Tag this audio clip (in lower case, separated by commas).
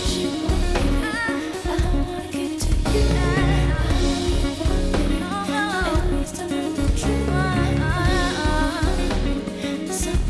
music, singing